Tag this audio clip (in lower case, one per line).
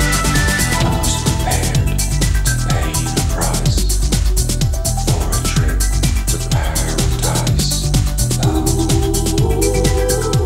music